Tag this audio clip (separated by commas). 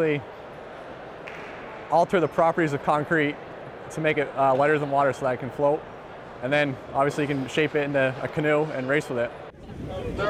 Speech